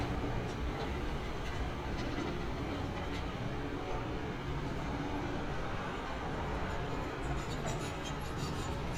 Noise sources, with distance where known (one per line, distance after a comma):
non-machinery impact, near